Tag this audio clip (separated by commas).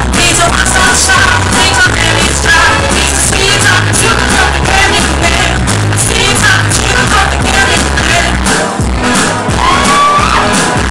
Music, Female singing